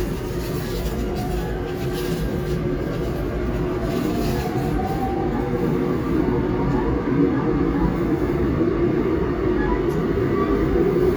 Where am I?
on a subway train